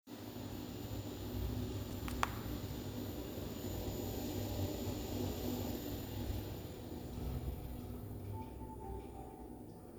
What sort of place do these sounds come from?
elevator